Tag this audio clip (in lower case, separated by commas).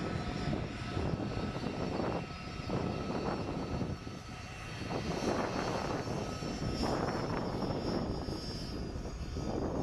jet engine, vehicle, aircraft